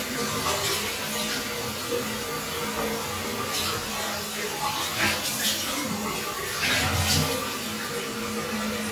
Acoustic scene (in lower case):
restroom